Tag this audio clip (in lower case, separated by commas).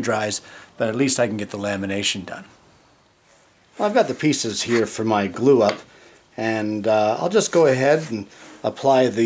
speech, inside a small room